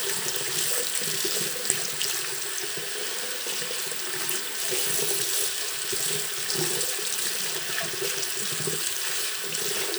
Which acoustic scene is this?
restroom